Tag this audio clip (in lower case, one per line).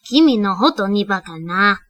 human voice
female speech
speech